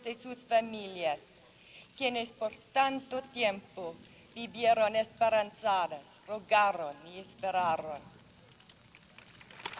A woman speaking